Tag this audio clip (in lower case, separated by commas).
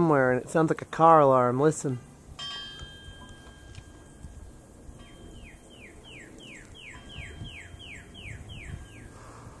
bird call, bird, speech